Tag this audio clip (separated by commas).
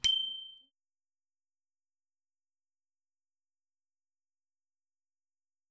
Bicycle, Alarm, Bell, Vehicle, Bicycle bell